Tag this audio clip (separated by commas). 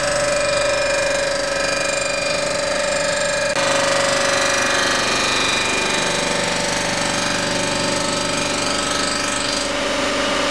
Tools, Power tool